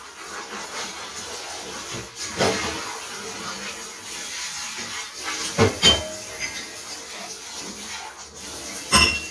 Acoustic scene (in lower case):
kitchen